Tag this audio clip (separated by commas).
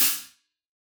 Hi-hat, Cymbal, Music, Musical instrument, Percussion